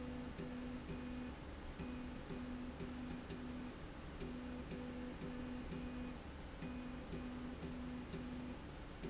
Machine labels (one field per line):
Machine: slide rail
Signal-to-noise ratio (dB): 6 dB